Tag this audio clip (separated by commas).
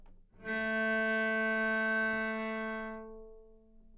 Musical instrument, Bowed string instrument, Music